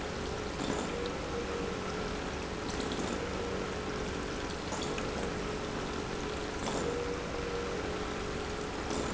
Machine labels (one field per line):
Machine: pump